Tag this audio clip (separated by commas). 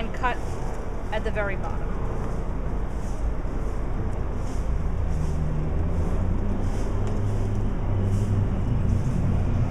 Speech, Car passing by